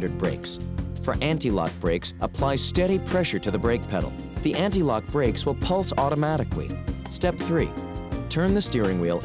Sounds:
speech, music

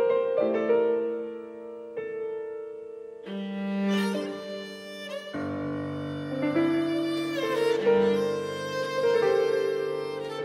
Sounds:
piano, folk music, music

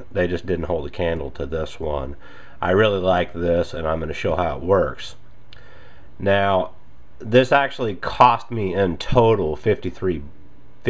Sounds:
speech

